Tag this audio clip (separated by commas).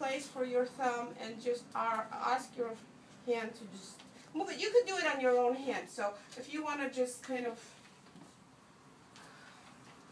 Speech